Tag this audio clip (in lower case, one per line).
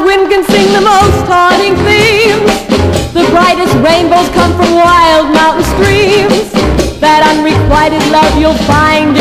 music